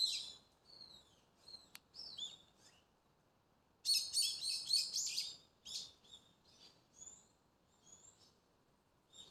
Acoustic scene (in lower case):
park